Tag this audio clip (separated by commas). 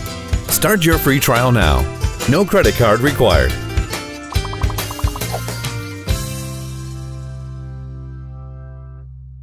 Music, Speech